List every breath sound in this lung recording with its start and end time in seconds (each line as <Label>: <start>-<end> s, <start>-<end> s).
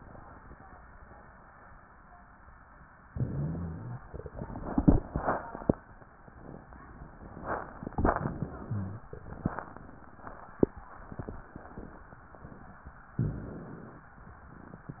Inhalation: 3.09-4.00 s, 8.18-9.09 s, 13.17-14.12 s
Rhonchi: 3.09-4.00 s, 8.58-9.09 s